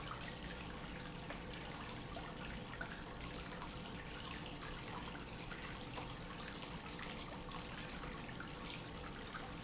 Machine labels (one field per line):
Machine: pump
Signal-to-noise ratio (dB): 6 dB